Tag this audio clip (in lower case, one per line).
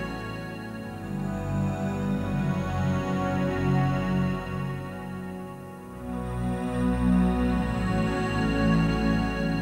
music